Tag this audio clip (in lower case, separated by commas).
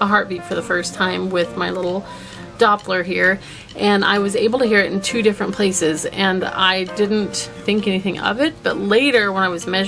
speech, music